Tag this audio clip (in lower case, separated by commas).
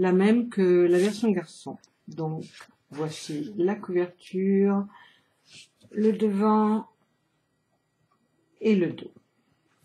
speech